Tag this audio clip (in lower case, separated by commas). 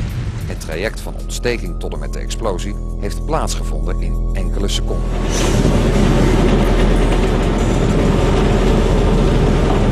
explosion, boom, speech, music